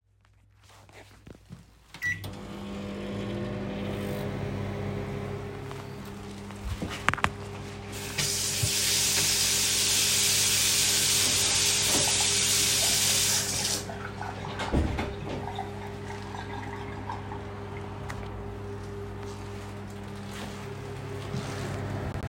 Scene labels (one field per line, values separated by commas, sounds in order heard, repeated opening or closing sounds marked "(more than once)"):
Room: kitchen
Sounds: microwave, running water